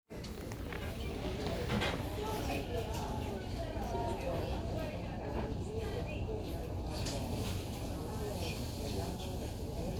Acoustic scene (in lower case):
crowded indoor space